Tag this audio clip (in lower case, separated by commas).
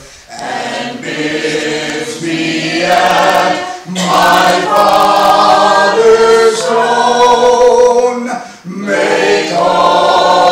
a capella, music